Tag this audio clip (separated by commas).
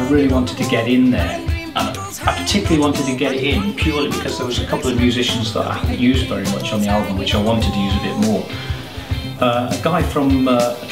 Music, Speech